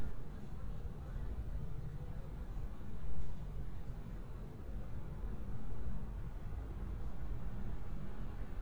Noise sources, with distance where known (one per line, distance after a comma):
background noise